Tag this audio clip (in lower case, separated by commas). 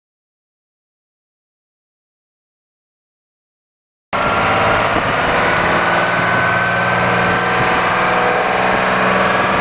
idling, vehicle, truck